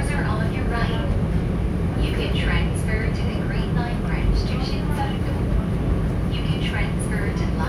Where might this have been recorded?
on a subway train